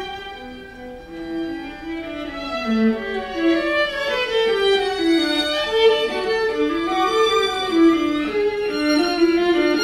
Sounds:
Music, fiddle, Musical instrument

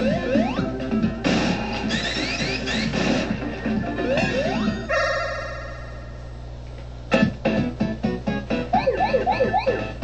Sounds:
Music

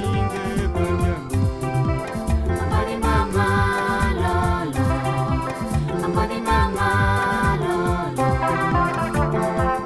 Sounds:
Music

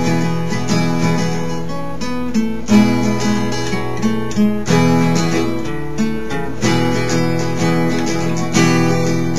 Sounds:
Music

